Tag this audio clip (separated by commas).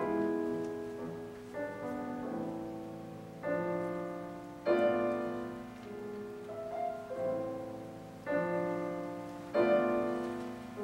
Music, Musical instrument